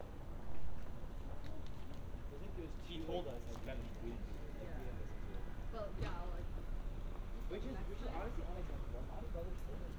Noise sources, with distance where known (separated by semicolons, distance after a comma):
person or small group talking, near